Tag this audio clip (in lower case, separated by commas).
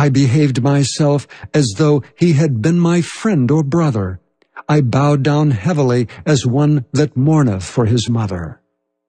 speech, speech synthesizer